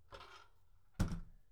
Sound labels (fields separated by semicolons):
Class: window; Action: closing